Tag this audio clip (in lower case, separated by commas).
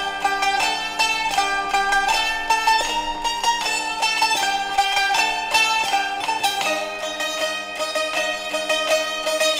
guitar, musical instrument, music, plucked string instrument